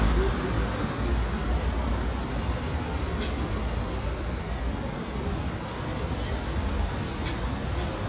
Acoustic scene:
street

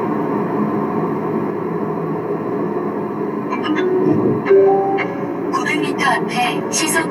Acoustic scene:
car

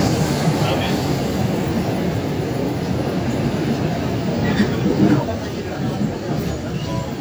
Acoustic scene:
subway train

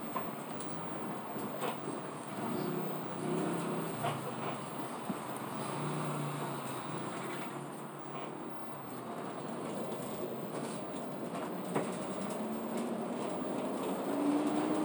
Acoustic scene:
bus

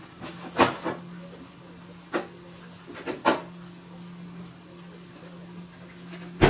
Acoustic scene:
kitchen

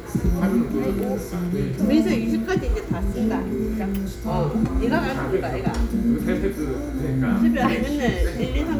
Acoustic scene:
restaurant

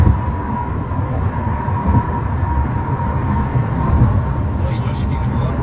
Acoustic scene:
car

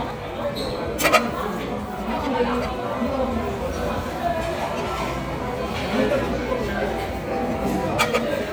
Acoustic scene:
restaurant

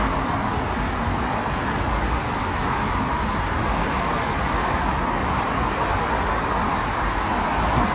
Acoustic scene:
street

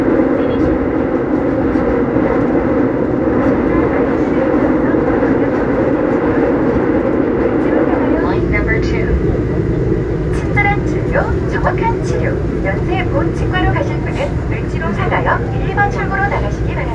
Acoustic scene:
subway train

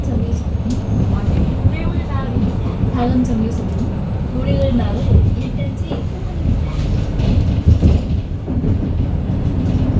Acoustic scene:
bus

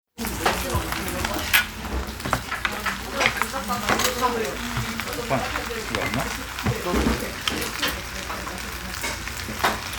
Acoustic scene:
restaurant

